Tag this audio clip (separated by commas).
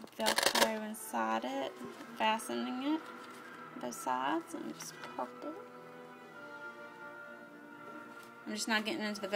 Speech, Music